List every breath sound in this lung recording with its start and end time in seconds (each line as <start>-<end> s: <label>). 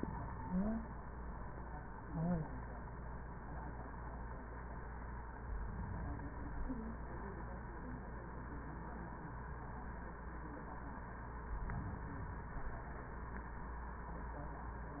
5.38-6.83 s: inhalation
11.45-12.89 s: inhalation